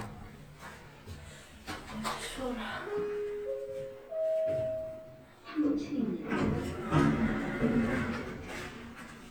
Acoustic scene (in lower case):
elevator